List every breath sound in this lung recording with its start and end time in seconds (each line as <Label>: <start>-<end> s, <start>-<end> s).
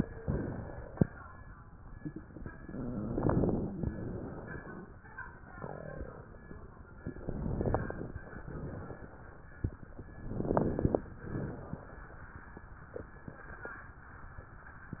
Inhalation: 7.08-8.31 s, 10.17-11.10 s
Exhalation: 8.43-9.36 s, 11.23-12.16 s
Crackles: 7.04-8.33 s, 10.19-11.06 s